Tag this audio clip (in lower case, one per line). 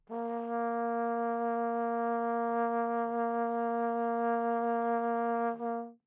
music
musical instrument
brass instrument